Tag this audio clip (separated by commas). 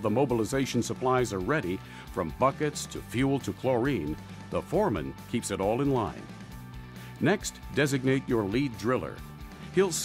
Music, Speech